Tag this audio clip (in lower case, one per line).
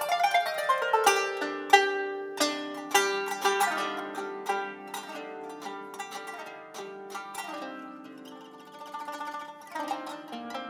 playing zither